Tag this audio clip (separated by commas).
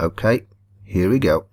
Speech, Human voice, man speaking